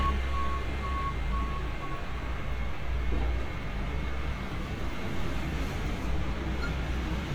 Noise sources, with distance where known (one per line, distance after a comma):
unidentified alert signal